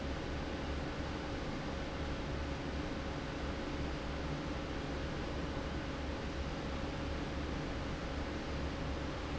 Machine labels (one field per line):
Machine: fan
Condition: abnormal